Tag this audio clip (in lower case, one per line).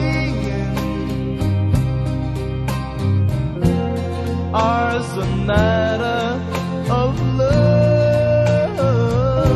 music